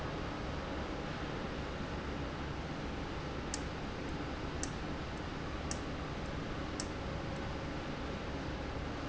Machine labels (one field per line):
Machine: valve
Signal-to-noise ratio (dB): -6 dB